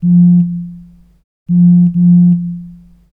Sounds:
alarm, telephone

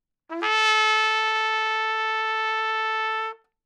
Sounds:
musical instrument, brass instrument, music, trumpet

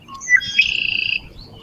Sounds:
wild animals, animal, bird

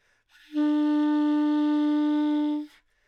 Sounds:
music, musical instrument, woodwind instrument

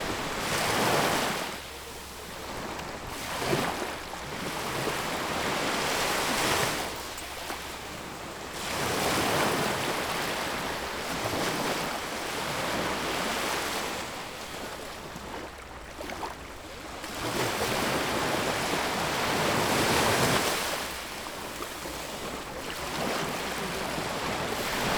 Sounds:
ocean, water

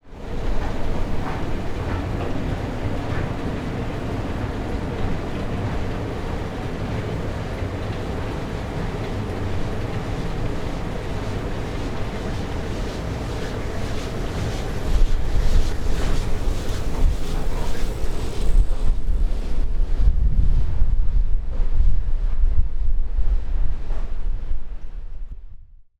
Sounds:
mechanisms, mechanical fan

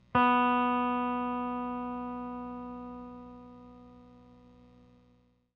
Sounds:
musical instrument, electric guitar, music, guitar, plucked string instrument

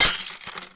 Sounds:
shatter, glass, crushing

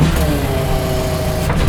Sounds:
mechanisms, engine

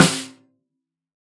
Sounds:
musical instrument, drum, percussion, music, snare drum

